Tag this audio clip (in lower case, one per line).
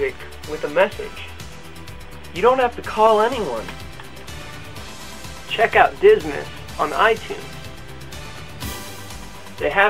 speech
music